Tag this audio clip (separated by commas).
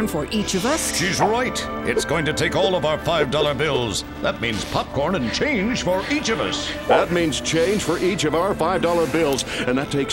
Speech, Music